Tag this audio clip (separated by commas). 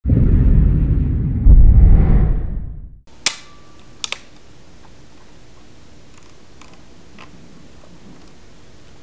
inside a large room or hall, Speech